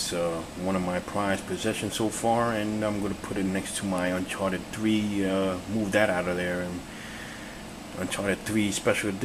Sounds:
Speech

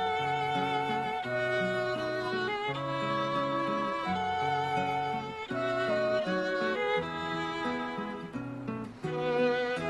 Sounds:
Music

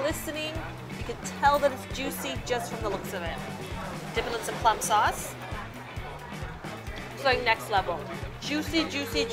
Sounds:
Music, Speech

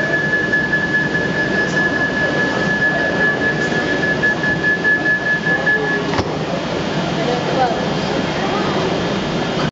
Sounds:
Speech, Sliding door, Vehicle

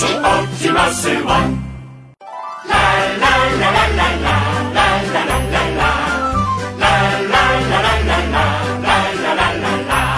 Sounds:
Music

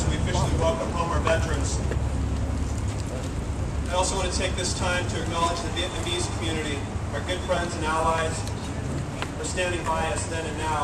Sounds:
Speech

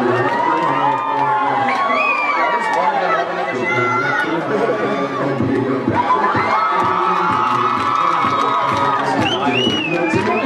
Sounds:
Cheering, Music, Crowd, Speech

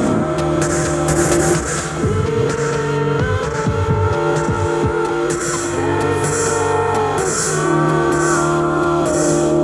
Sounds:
Music

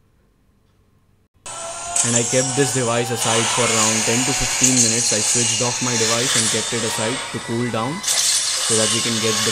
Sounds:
Speech

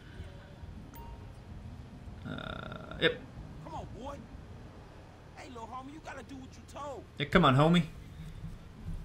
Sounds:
Speech

